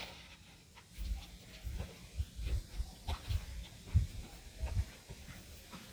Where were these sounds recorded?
in a park